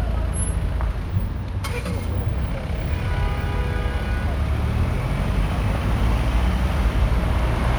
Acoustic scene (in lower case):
street